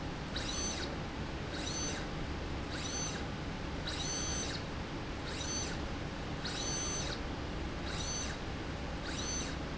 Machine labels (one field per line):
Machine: slide rail